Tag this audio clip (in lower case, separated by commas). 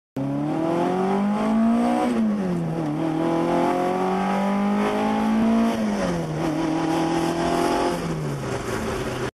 vroom, car, vehicle